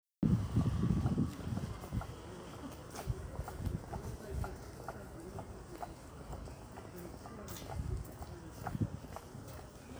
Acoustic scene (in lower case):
residential area